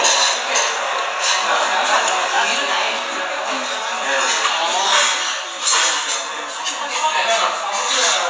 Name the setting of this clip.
restaurant